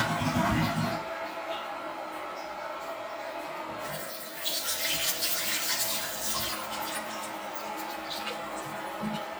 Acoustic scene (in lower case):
restroom